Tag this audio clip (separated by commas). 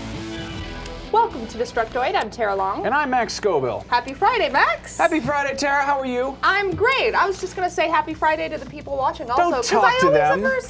Speech, Music